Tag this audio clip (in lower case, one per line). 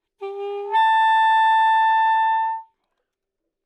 musical instrument
wind instrument
music